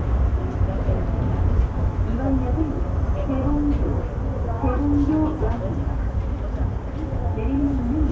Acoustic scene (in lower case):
subway train